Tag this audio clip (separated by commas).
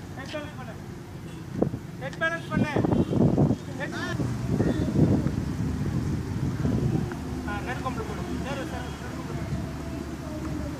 Speech